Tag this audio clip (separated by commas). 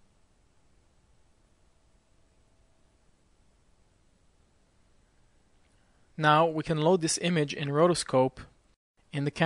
Speech